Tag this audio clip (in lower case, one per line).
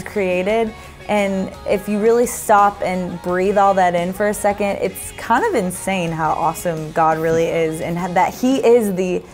music
speech